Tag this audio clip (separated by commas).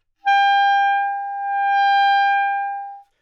Music, Wind instrument, Musical instrument